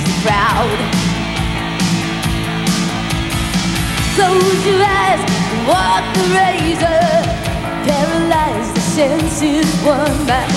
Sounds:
music

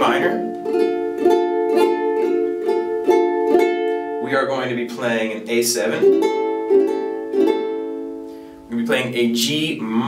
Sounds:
playing ukulele

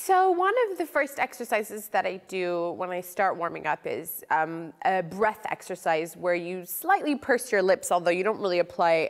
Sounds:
speech

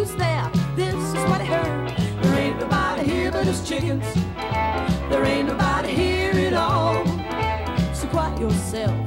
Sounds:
bowed string instrument

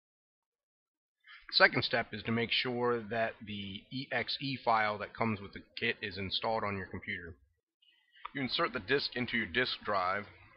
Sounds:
speech

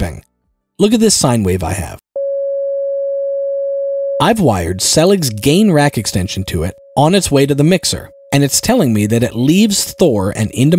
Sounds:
music
speech

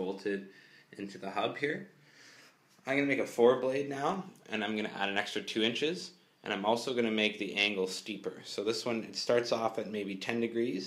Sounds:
speech

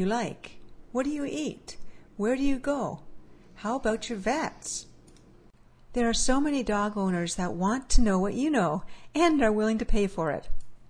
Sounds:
speech

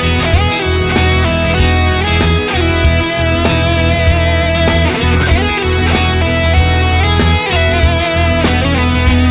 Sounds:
plucked string instrument
music
strum
guitar
musical instrument

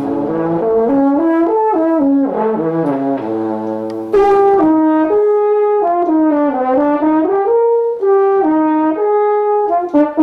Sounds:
playing french horn

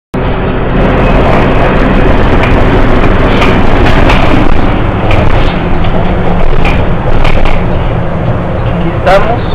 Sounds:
speech

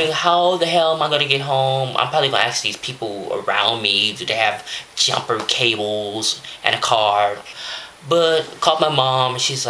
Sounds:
speech

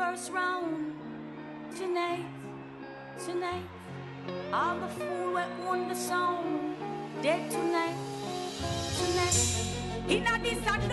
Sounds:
music

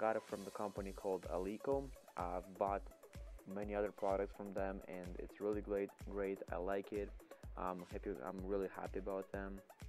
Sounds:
speech

